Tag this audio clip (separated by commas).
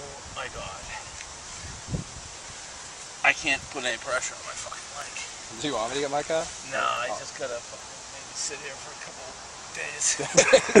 Speech